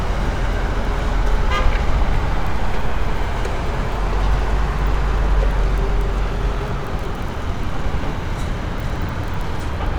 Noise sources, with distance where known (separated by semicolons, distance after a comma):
medium-sounding engine; car horn, near